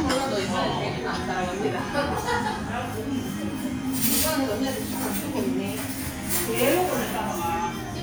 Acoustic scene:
restaurant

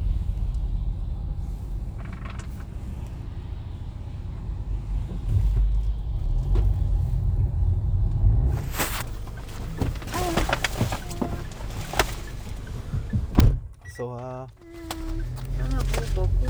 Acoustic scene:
car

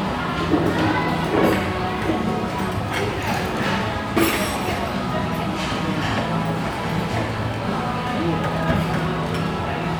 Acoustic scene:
restaurant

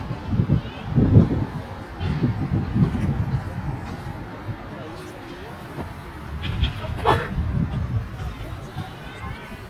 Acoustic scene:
residential area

